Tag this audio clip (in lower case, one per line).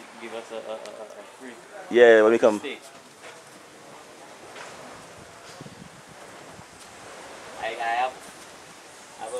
speech